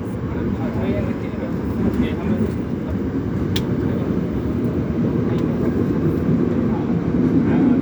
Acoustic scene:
subway train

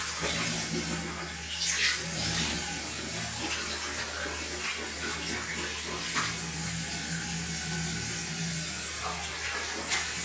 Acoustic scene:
restroom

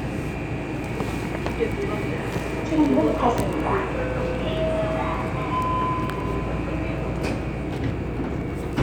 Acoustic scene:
subway train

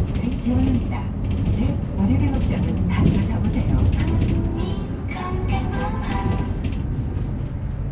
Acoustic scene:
bus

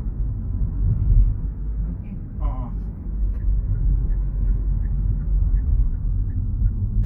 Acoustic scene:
car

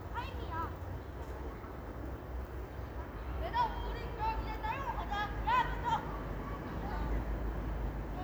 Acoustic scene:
residential area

